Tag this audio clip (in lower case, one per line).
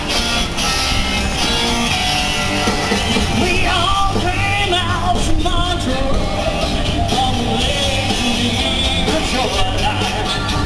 music